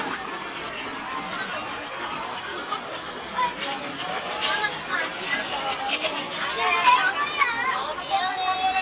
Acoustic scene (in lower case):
park